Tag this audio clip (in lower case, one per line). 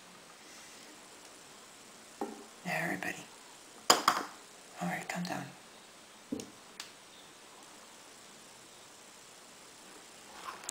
speech
inside a small room